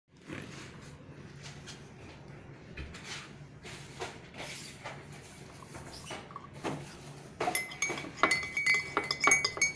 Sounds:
liquid
glass

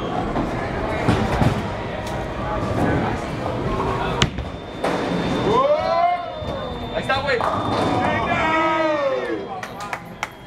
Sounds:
bowling impact

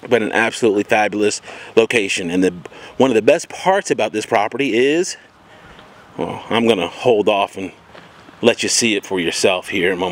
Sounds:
speech

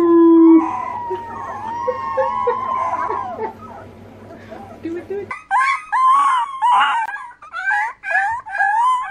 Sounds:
dog howling

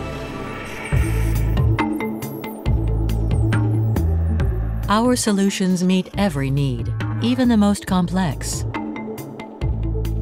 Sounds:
music
speech

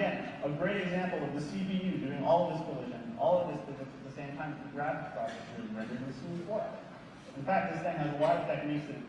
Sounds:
speech

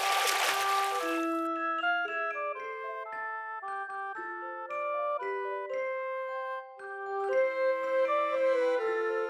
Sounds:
music

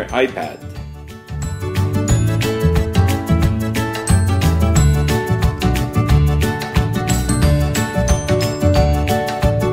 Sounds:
speech
music

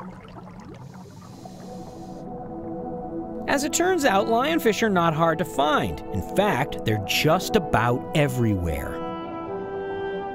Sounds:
music
speech

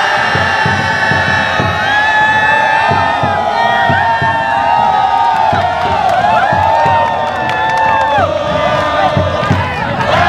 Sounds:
outside, urban or man-made
music

